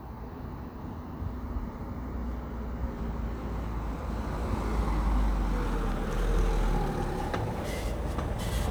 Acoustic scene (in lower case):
residential area